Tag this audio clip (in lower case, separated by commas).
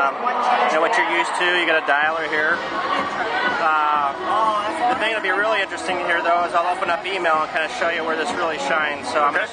speech